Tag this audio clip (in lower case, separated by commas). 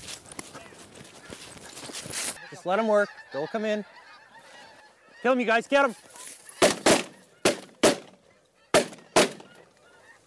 honk, goose, fowl